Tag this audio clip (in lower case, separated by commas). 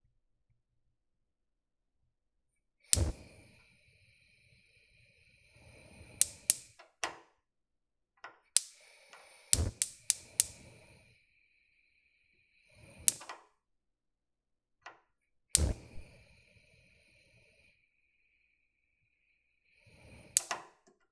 fire